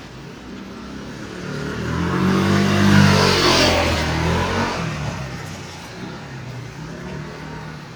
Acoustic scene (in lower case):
residential area